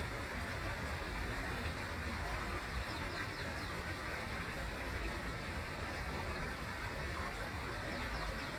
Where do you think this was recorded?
in a park